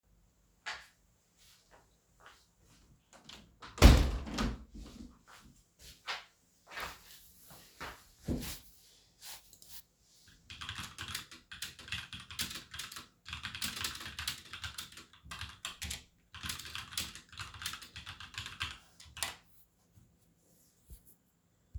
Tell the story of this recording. I walk over to the window, I close it then I start typing.